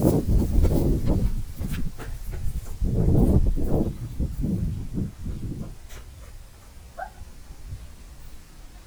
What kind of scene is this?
park